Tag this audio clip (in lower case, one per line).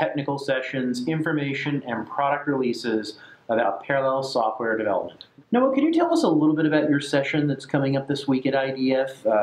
speech